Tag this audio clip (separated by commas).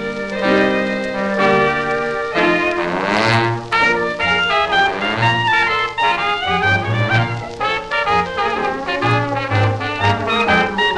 Trombone, Music